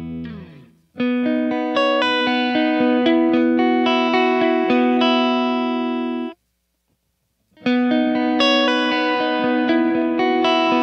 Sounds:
Music

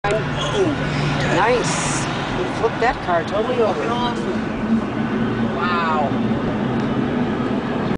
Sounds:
Vehicle, Car passing by, Car, Speech

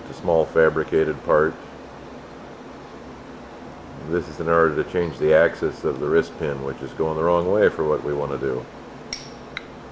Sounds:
Speech

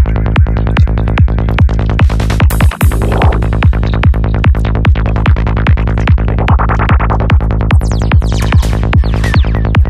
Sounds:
Music

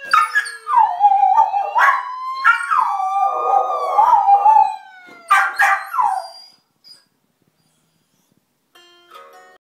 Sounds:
Whimper (dog), Police car (siren), Domestic animals, Music, Animal, Bow-wow, Dog, Siren, Yip

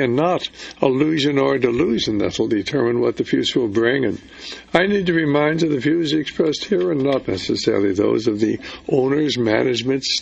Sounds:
Speech, Radio

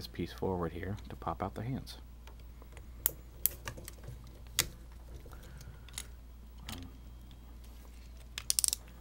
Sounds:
Speech, inside a small room

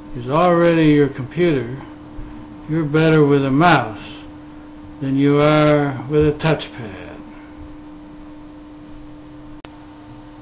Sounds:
Speech

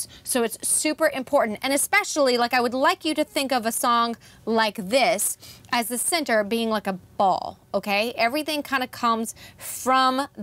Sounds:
Speech

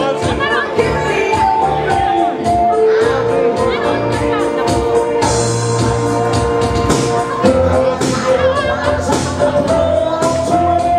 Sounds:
Music, Speech

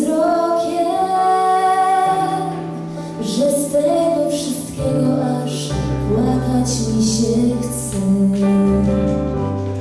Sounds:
Female singing, Music

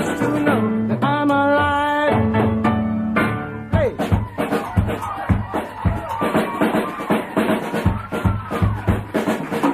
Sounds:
Singing, Music

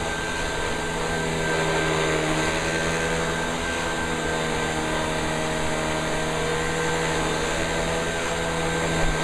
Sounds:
Vacuum cleaner

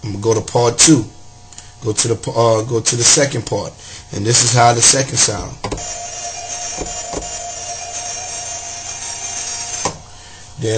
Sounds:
Music, inside a small room, Speech

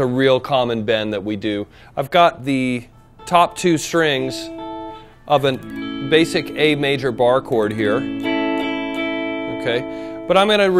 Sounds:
Strum

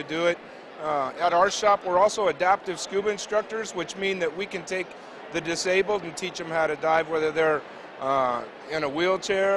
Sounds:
Speech

